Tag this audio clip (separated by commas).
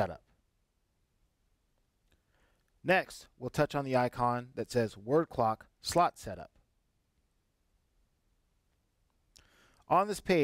Speech